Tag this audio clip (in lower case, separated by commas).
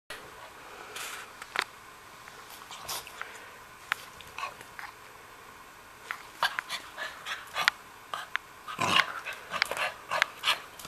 animal, domestic animals, dog